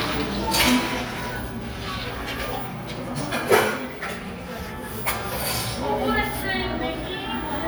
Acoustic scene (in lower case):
cafe